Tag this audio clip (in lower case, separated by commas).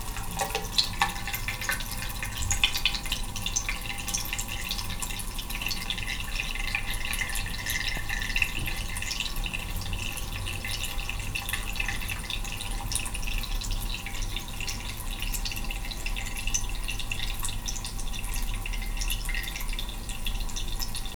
domestic sounds, bathtub (filling or washing)